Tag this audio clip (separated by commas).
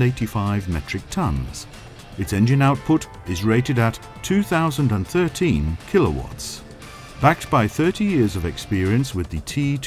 Speech